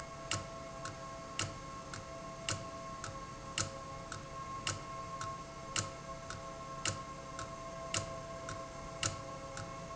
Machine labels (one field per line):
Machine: valve